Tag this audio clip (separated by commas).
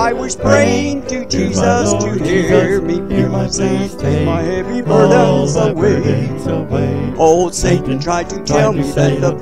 Choir, Music, Male singing